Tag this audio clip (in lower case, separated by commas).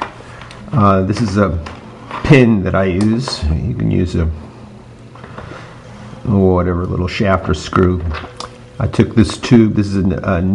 speech